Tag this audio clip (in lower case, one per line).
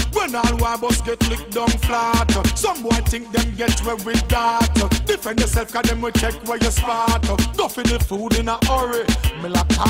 music